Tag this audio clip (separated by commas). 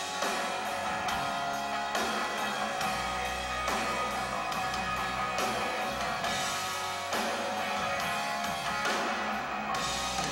Music